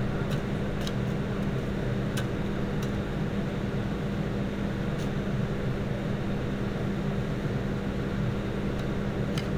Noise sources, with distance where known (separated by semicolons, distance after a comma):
engine of unclear size, near